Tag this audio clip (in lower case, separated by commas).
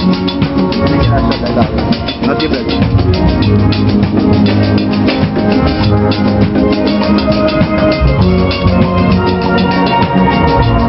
speech, music